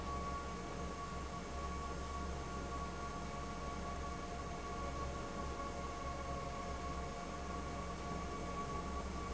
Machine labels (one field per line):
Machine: fan